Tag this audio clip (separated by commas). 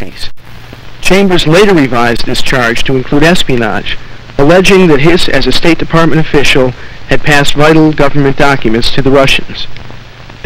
Speech